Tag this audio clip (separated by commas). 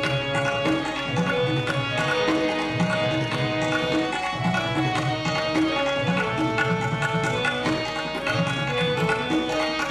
Tabla, Percussion